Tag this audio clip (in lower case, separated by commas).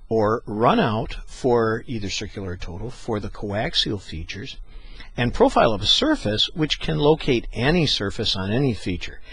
speech